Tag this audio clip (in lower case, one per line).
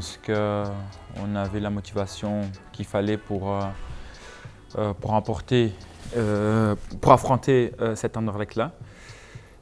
speech
music